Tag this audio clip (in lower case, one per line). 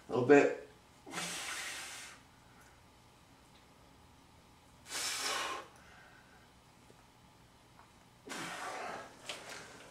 speech